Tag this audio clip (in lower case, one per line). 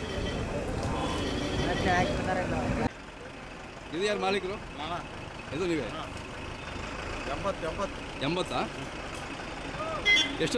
bull bellowing